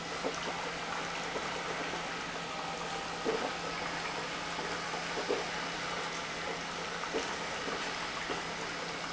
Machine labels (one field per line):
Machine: pump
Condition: abnormal